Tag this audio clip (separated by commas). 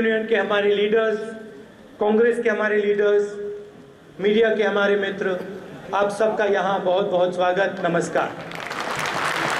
Speech, Male speech, Narration